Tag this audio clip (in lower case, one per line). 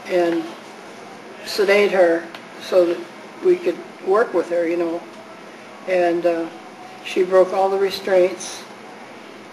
speech